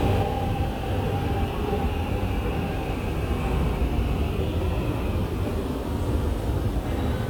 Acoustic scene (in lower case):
subway station